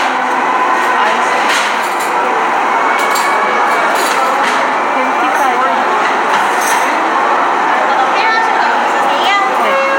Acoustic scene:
cafe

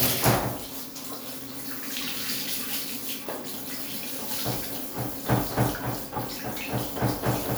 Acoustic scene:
restroom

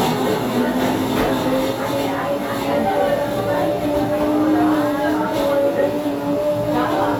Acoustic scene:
cafe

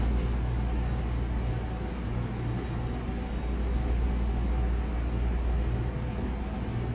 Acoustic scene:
subway station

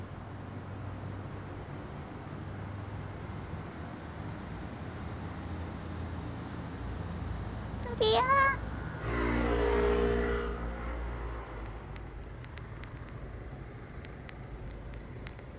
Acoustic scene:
residential area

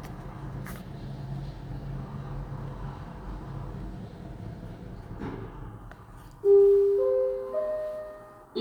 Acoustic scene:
elevator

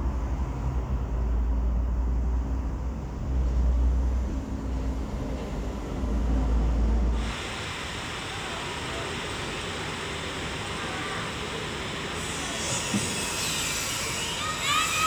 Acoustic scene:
residential area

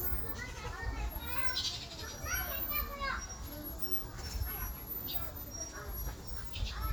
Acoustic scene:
park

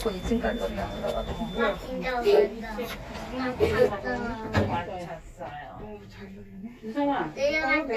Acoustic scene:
elevator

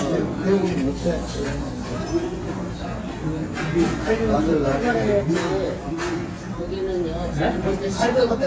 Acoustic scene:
restaurant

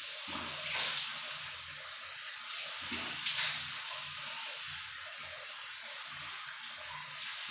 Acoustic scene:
restroom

